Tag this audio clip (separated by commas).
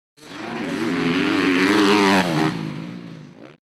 Motorcycle, Motor vehicle (road), Vehicle